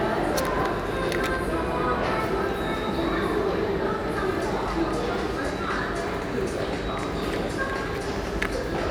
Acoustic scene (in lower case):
subway station